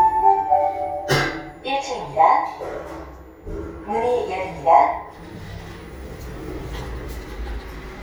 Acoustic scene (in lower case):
elevator